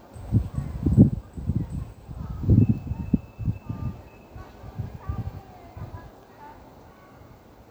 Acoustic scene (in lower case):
park